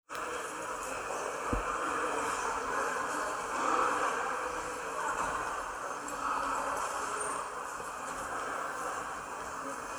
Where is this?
in a subway station